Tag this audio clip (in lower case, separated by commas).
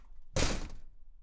door, slam, domestic sounds